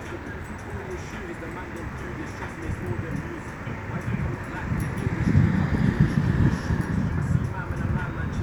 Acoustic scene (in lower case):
street